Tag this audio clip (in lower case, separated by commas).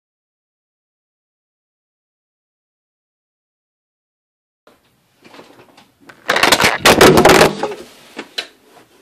inside a small room